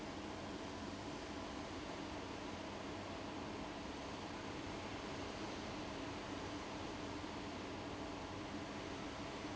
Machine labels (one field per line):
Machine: fan